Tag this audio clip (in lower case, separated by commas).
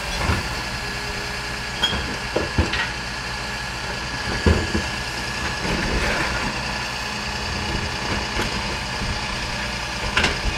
idling, truck, vehicle, outside, rural or natural